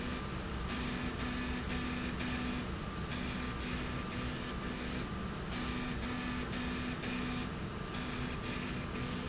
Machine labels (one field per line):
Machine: slide rail